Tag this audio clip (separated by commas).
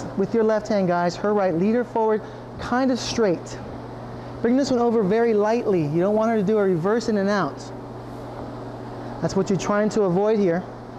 Speech